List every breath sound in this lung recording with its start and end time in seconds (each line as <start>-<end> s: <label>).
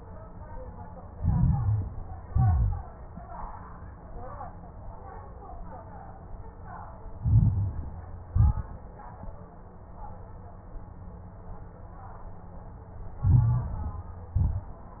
1.08-2.09 s: inhalation
1.08-2.09 s: crackles
2.18-3.00 s: exhalation
2.18-3.00 s: crackles
7.14-8.07 s: inhalation
7.14-8.07 s: crackles
8.28-8.97 s: exhalation
8.28-8.97 s: crackles
13.21-14.14 s: inhalation
13.21-14.14 s: crackles
14.31-14.99 s: exhalation
14.31-14.99 s: crackles